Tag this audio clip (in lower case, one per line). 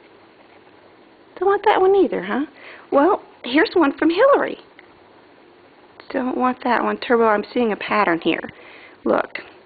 speech